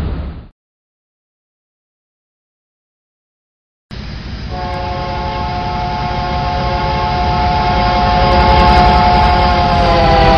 As a train approaches, the train horn gets louder then softer